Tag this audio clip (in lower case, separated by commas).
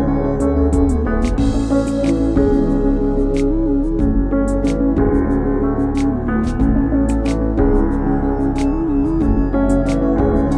music